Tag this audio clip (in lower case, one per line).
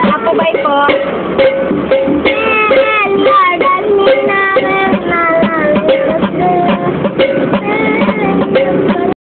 vehicle
speech
music
female singing
child singing